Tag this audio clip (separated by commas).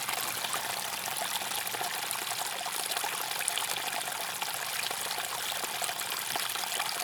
Stream, Water